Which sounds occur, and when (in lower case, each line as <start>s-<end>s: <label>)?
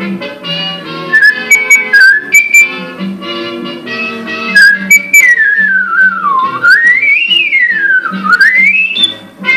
0.0s-9.5s: background noise
0.0s-9.5s: music
1.1s-2.7s: whistling
4.5s-9.2s: whistling
9.4s-9.5s: whistling